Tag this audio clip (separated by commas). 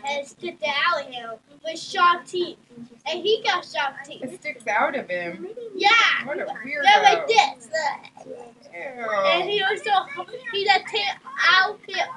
Speech, Human voice